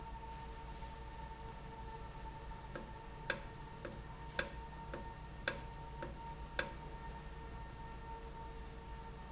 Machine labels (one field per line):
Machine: valve